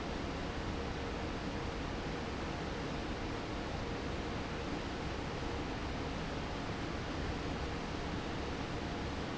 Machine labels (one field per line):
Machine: fan